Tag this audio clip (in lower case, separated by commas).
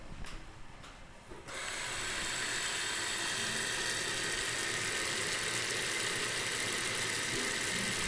liquid